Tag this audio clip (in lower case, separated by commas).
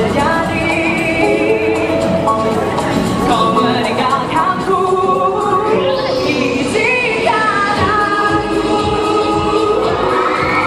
female singing, music, speech